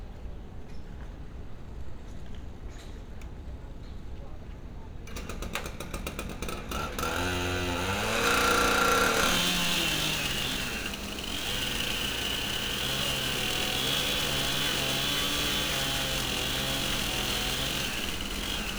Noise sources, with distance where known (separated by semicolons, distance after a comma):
chainsaw, near